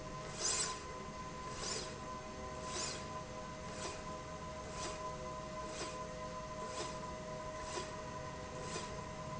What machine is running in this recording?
slide rail